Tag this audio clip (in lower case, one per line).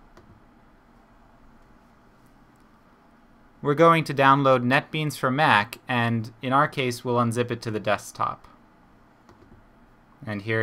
speech